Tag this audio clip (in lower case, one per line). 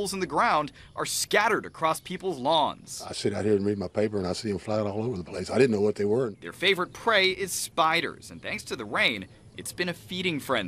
speech